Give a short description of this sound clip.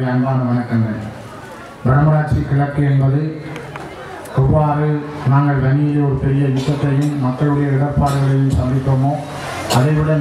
A man talking into a microphone and slight chatter from the crowd